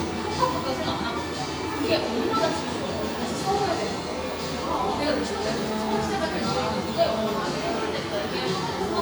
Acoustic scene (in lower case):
cafe